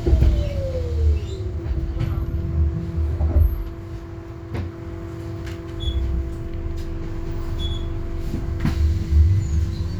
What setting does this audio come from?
bus